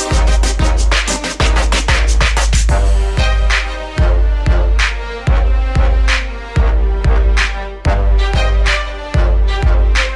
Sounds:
music

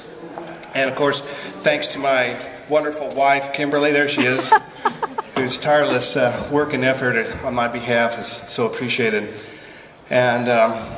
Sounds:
speech

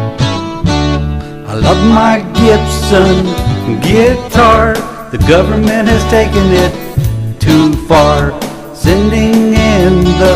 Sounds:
guitar, strum, plucked string instrument, musical instrument, acoustic guitar, music

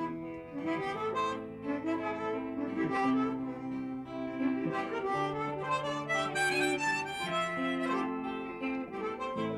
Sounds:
harmonica, music

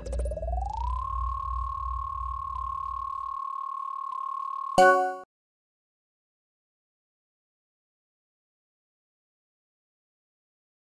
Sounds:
music, sound effect

